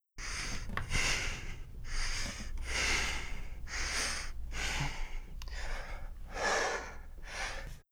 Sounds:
respiratory sounds
breathing

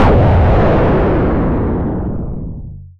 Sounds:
explosion

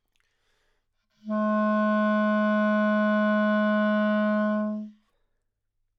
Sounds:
music
wind instrument
musical instrument

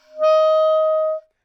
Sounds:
musical instrument
woodwind instrument
music

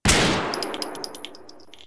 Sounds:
gunfire
explosion

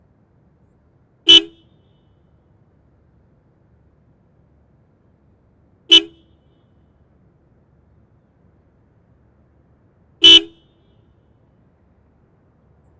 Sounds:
motor vehicle (road)
vehicle
car
honking
alarm

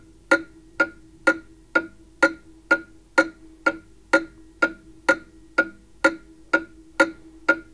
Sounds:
mechanisms
clock

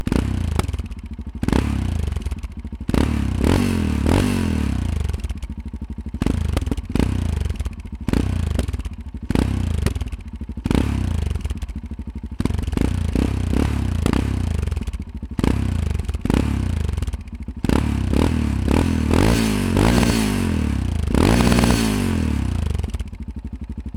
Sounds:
motorcycle
motor vehicle (road)
vehicle

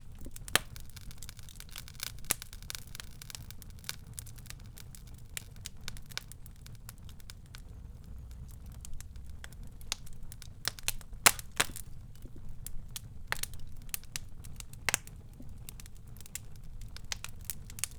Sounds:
fire

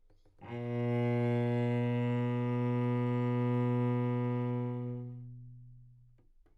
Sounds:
musical instrument
bowed string instrument
music

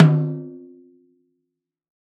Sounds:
snare drum
drum
percussion
music
musical instrument

